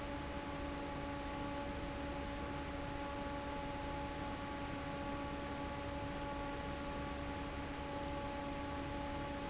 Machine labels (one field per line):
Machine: fan